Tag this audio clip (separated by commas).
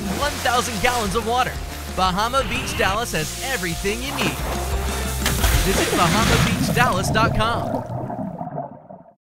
Speech, Gurgling, Music, Waterfall